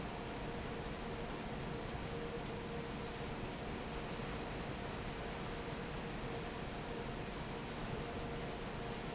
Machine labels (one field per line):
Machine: fan